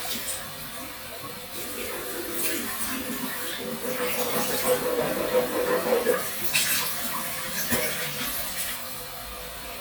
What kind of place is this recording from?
restroom